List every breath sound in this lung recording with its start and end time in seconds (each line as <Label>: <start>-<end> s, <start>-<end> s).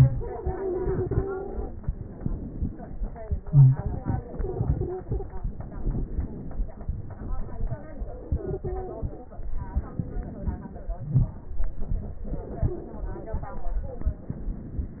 Inhalation: 0.00-1.73 s, 3.41-5.67 s, 8.24-9.36 s, 12.23-14.10 s
Exhalation: 1.75-3.38 s, 5.68-8.24 s, 9.34-12.27 s, 14.11-15.00 s
Wheeze: 3.45-3.73 s, 10.93-11.43 s
Stridor: 0.21-1.49 s, 4.37-5.44 s, 8.30-9.02 s, 12.58-13.56 s
Crackles: 1.76-3.37 s, 5.67-8.22 s